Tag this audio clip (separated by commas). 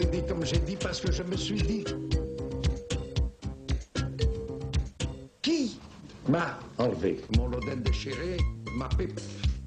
Music, Speech